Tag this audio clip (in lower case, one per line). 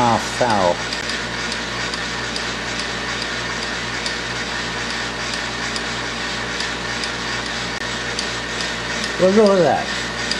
speech
engine
tools